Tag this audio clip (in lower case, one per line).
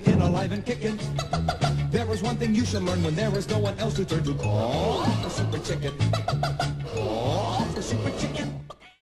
music